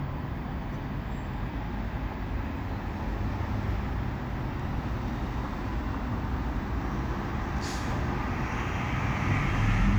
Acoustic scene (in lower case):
street